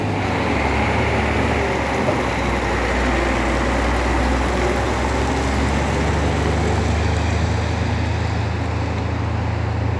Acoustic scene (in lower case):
street